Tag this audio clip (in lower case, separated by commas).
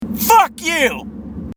speech, human voice